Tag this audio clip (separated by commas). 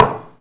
Wood, home sounds, dishes, pots and pans